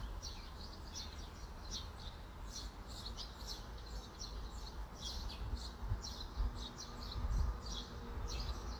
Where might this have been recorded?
in a park